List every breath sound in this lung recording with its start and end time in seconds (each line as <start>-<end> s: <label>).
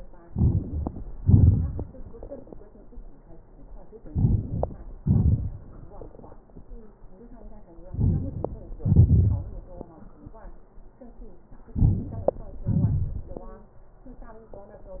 0.28-0.62 s: inhalation
1.19-1.76 s: exhalation
4.08-4.61 s: inhalation
5.02-5.55 s: exhalation
7.93-8.32 s: inhalation
8.82-9.37 s: exhalation
11.77-12.28 s: inhalation
12.69-13.20 s: exhalation